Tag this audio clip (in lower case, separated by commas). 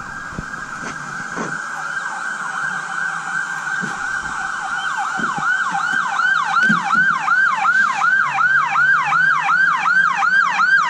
fire truck siren